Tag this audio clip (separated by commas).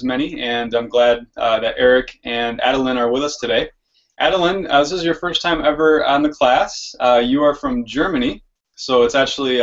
Speech